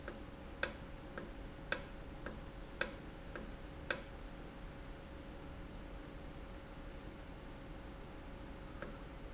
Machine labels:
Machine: valve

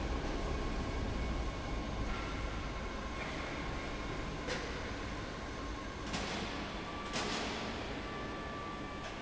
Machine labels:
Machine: fan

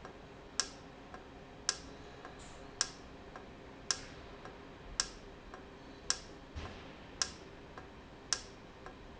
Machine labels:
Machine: valve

